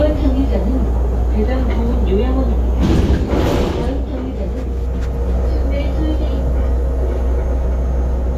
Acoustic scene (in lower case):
bus